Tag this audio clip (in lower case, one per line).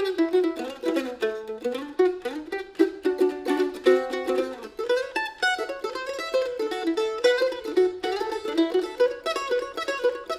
playing mandolin